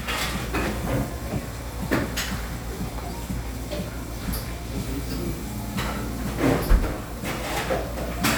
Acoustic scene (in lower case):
cafe